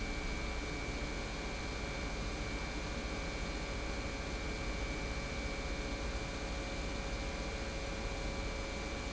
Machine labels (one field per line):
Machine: pump